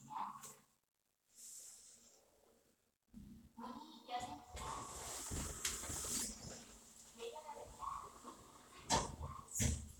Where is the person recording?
in an elevator